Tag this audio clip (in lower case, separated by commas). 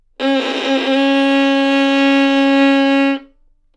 music, bowed string instrument, musical instrument